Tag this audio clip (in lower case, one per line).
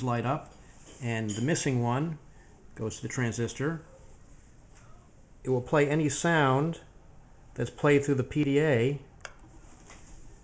speech